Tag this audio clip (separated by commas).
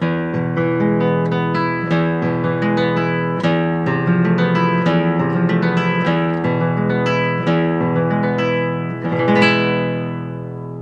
Strum, Guitar, Acoustic guitar, Plucked string instrument, Music, Musical instrument